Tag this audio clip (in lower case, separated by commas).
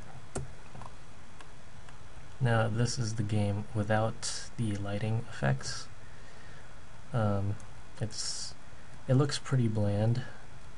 speech